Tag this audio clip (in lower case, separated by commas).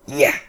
speech, human voice, man speaking